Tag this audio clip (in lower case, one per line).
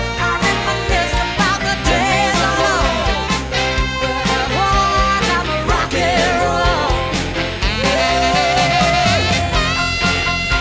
music